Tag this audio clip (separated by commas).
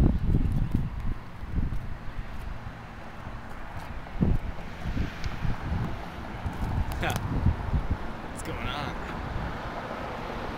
Wind, Speech